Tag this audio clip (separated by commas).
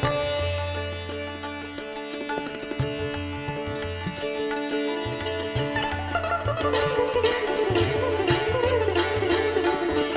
playing sitar